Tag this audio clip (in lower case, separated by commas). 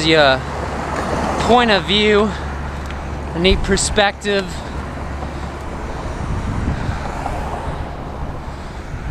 vehicle, speech